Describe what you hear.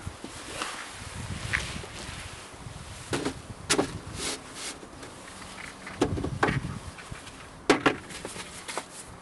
Rustling, some clanking on wood